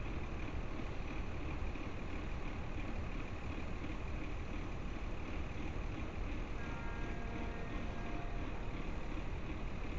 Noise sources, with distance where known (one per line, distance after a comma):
engine of unclear size
car horn, far